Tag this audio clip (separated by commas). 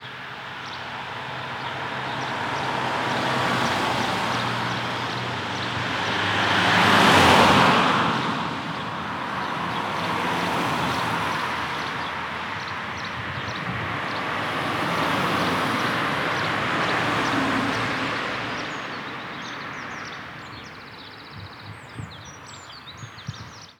Car, Car passing by, Vehicle, roadway noise, Motor vehicle (road)